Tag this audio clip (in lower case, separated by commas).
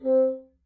musical instrument, music, woodwind instrument